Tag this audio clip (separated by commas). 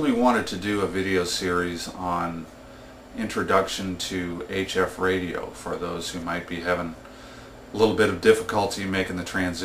Speech